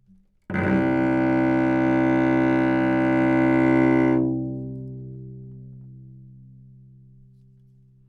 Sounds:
Music, Bowed string instrument, Musical instrument

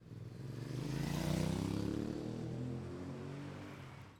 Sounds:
Motor vehicle (road), Vehicle, roadway noise

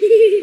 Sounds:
Human voice, Laughter

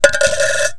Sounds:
Domestic sounds, Rattle, Coin (dropping)

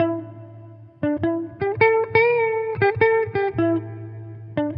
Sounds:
Plucked string instrument, Music, Guitar, Electric guitar, Musical instrument

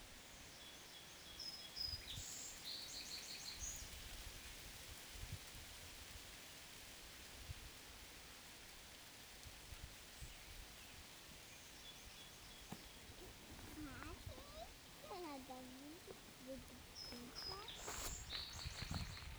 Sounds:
Bird vocalization, Bird, Wild animals, Animal

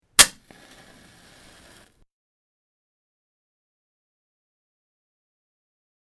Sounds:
Fire

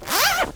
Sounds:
Zipper (clothing), home sounds

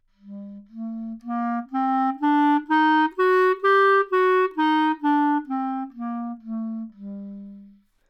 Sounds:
woodwind instrument, Musical instrument, Music

